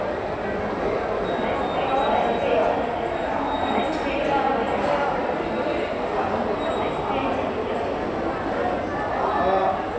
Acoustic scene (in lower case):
subway station